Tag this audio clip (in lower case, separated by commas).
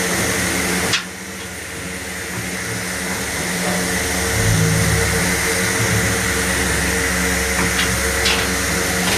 engine